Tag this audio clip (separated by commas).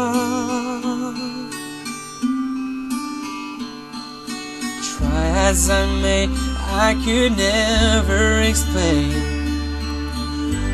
Singing